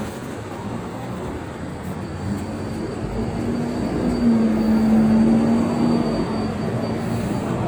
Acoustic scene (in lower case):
street